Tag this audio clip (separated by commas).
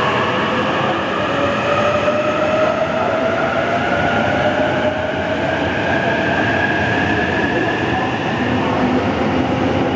Train, train wagon, metro, Rail transport